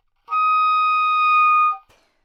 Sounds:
Music, Musical instrument, woodwind instrument

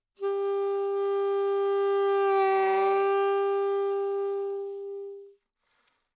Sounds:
Wind instrument, Music, Musical instrument

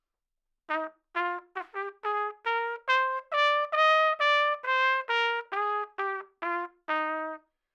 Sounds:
Music, Trumpet, Musical instrument, Brass instrument

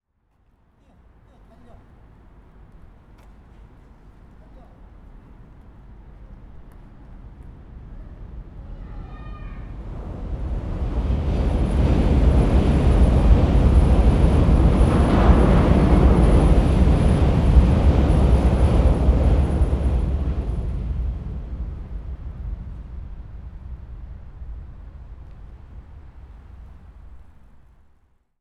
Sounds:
Train, Vehicle, Rail transport, underground

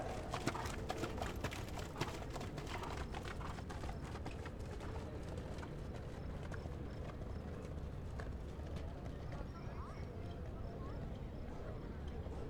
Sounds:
livestock, Animal

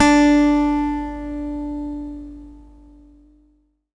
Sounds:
Guitar, Acoustic guitar, Plucked string instrument, Music, Musical instrument

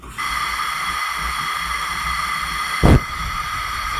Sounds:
Fire

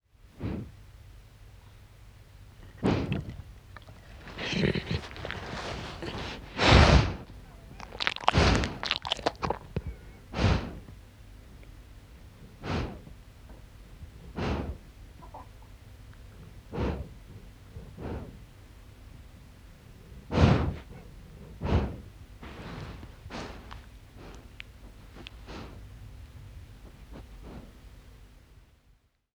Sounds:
Dog, Animal, Domestic animals

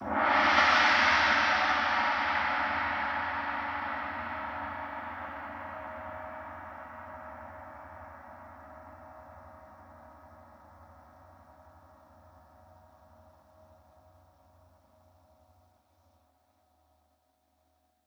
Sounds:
Music, Musical instrument, Percussion, Gong

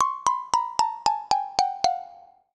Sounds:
Percussion, Mallet percussion, Musical instrument, Music, xylophone

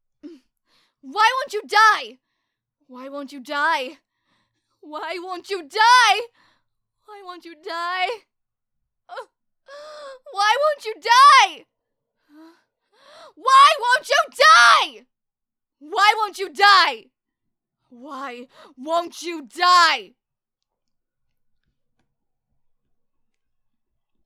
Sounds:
Shout, Human voice, Yell

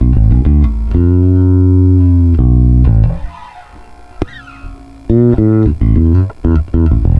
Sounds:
Music, Musical instrument, Bass guitar, Guitar, Plucked string instrument

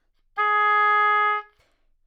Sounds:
Music, Musical instrument, Wind instrument

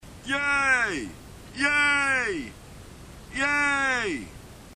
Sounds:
Human group actions, Cheering

